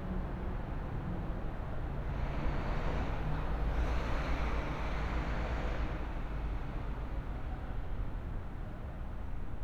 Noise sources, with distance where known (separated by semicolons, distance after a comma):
large-sounding engine